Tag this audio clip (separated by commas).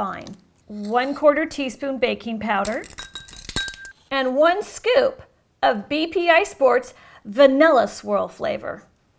inside a small room, clink, Speech